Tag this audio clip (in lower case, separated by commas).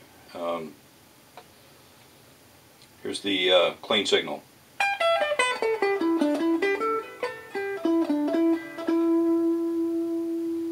distortion, music, speech